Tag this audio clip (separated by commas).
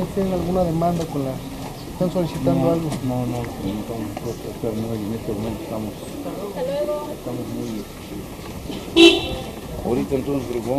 Speech